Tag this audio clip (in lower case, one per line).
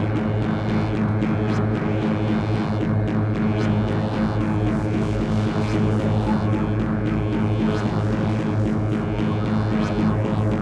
throbbing